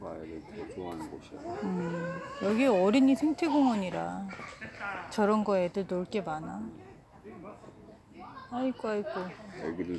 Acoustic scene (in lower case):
park